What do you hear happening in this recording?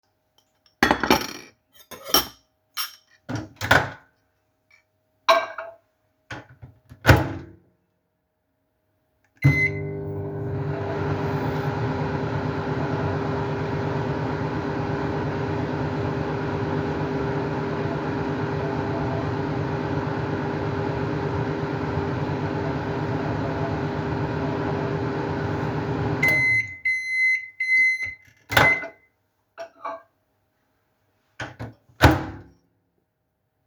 I picked up a dish and carried it to the microwave. I opened the microwave door and placed the dish inside. Then I started the microwave. When it finished, I opened the door, took the dish out, and closed the microwave door again.